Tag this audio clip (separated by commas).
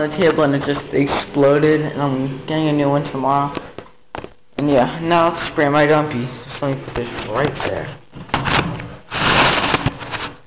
Speech